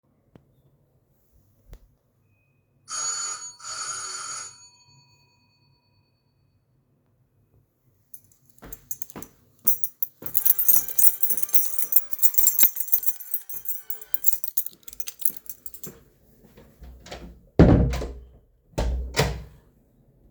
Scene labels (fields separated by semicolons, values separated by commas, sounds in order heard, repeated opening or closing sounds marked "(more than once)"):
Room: bedroom; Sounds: bell ringing, keys, footsteps, phone ringing, door